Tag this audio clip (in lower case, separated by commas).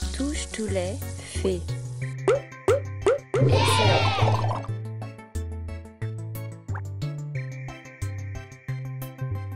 speech, music